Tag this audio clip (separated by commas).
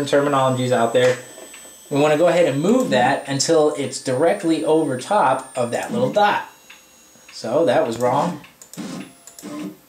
Speech